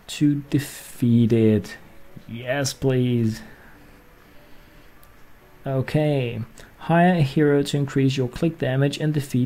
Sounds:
speech

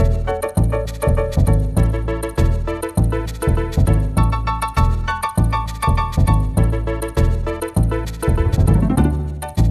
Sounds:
theme music, soundtrack music, music

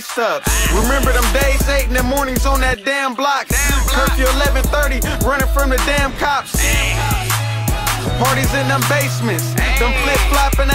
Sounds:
rhythm and blues, music

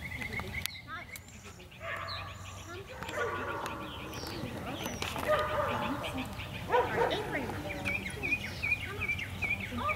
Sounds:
speech, dog, animal

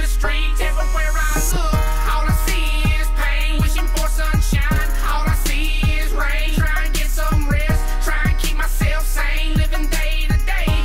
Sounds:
music

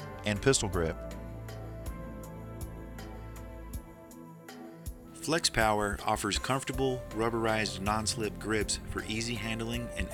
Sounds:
speech, music

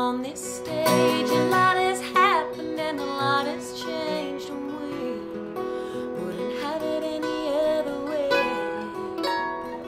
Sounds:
zither, plucked string instrument, singing, music, musical instrument

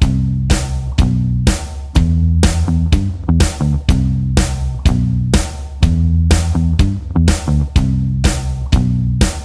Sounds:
music

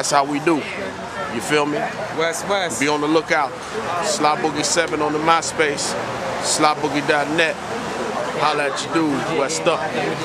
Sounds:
speech

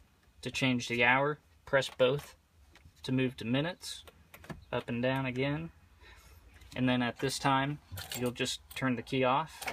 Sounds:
speech

